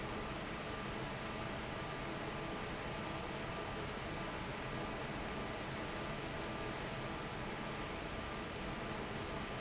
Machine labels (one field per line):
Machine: fan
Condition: normal